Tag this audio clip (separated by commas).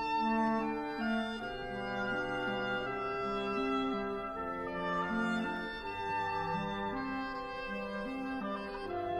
Music